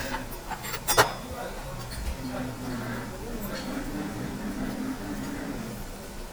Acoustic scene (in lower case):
restaurant